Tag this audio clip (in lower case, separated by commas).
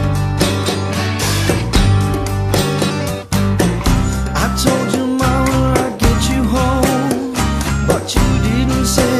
music